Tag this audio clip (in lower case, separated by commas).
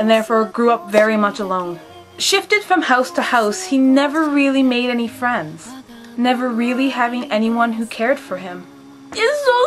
speech, inside a small room, music